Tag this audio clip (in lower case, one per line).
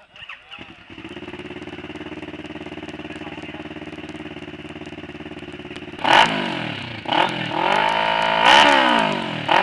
speech